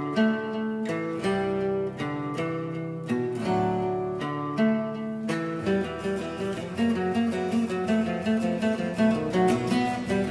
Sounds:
Musical instrument, Acoustic guitar, playing acoustic guitar, Plucked string instrument, Music, Guitar

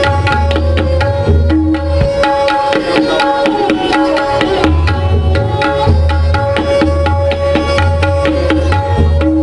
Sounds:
Music, Tabla

